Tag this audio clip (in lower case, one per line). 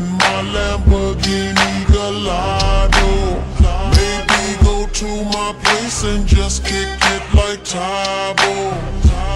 music